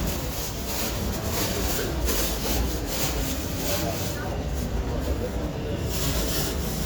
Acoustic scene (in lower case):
residential area